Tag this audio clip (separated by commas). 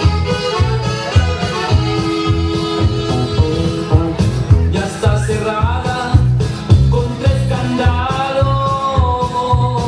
Music